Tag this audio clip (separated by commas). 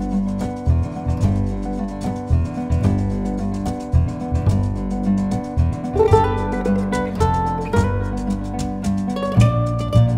Music, Percussion